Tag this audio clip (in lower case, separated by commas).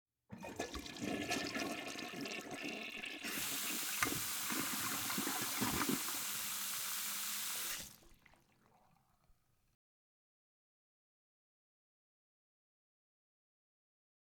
home sounds, toilet flush, water tap